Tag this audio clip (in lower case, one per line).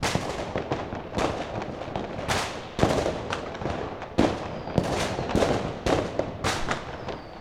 fireworks
explosion